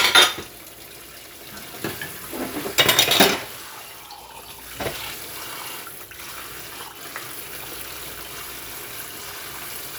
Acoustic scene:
kitchen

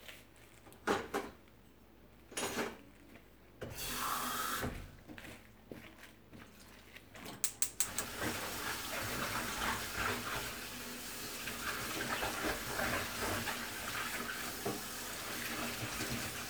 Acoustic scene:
kitchen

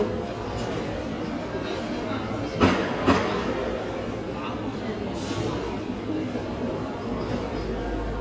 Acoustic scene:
cafe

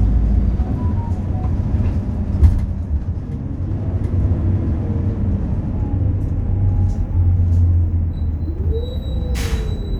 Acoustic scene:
bus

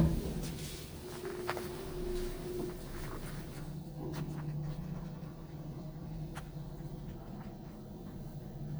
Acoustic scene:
elevator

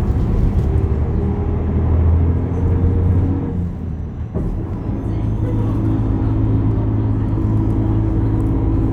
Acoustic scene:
bus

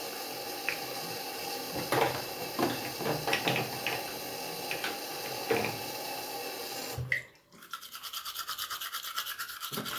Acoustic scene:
restroom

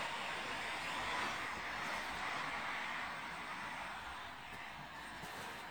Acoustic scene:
street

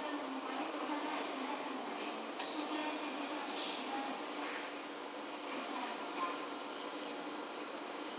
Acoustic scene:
subway train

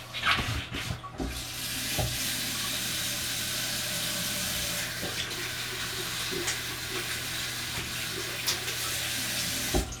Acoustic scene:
restroom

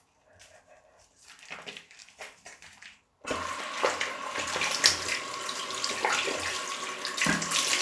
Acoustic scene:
restroom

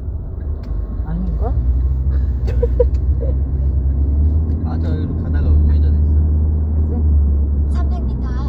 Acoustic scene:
car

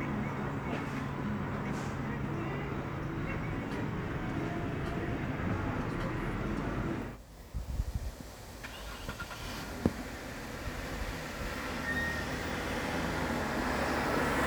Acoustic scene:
street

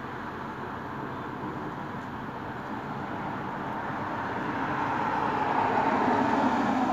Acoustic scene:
street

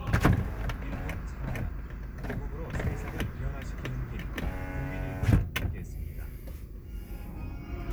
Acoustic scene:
car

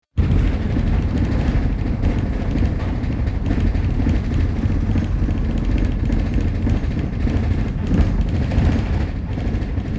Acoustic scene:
bus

